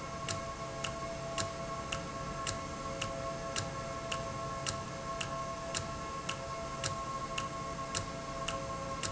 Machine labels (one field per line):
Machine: valve